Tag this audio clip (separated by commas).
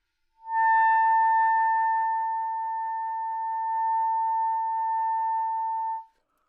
Music, woodwind instrument, Musical instrument